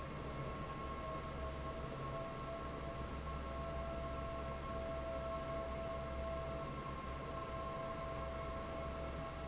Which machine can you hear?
fan